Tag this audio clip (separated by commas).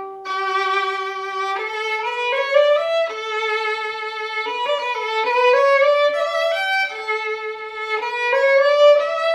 Musical instrument, Violin, Music